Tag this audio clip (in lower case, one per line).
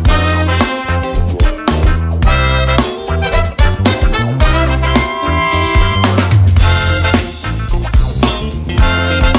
musical instrument
drum
percussion
music
bass drum
drum kit
snare drum
cymbal
hi-hat